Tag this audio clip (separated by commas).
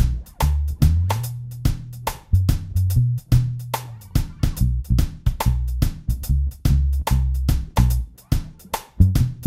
Plucked string instrument, Music, Musical instrument, Guitar